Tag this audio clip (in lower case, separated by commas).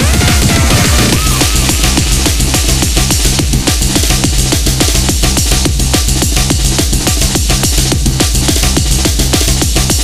music, drum and bass